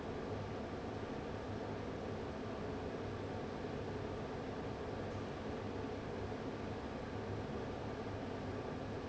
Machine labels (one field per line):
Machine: fan